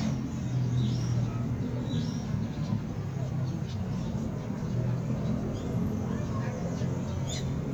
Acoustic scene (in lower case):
park